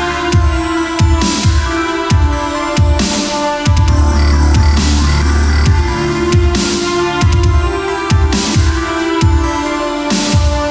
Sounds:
Music, Dubstep

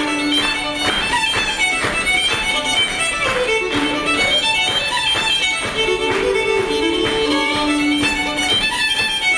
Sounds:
Musical instrument, Music, Violin

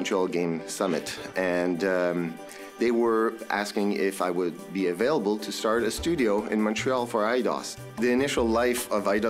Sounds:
Music, Speech

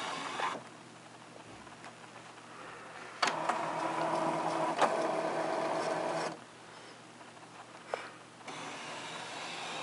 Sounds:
Printer

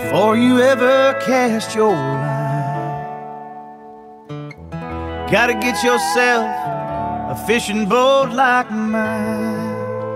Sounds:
Music

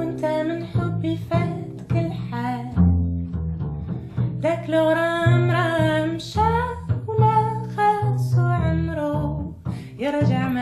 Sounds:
Music

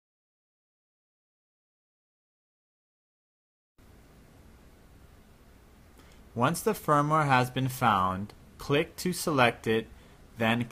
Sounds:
Speech, Silence

